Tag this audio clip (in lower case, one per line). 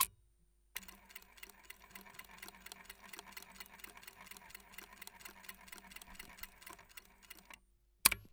mechanisms